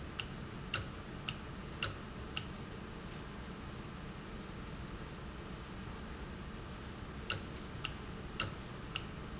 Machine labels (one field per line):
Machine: valve